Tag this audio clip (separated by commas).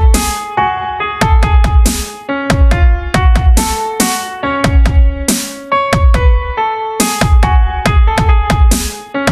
Music, Dubstep